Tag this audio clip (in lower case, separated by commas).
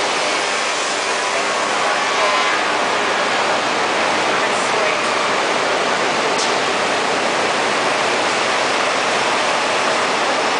speech